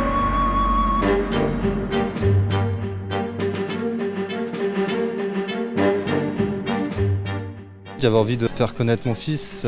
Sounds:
Music, Speech

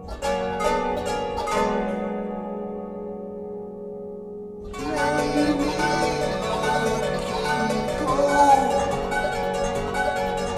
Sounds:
Music, Musical instrument

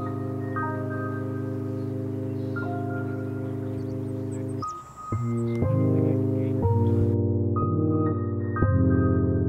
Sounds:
Music

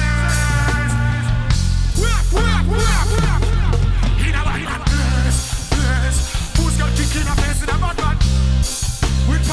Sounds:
Music

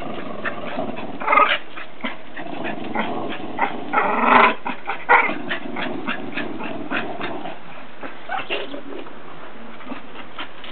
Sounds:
Domestic animals, Animal, canids, Dog

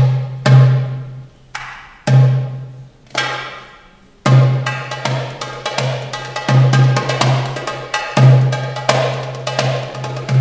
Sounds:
Drum, Percussion, Musical instrument, Music

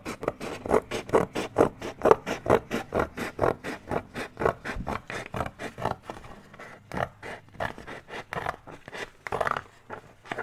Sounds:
writing on blackboard with chalk

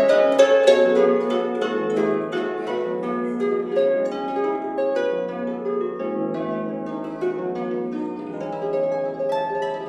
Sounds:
Pizzicato, Harp, playing harp

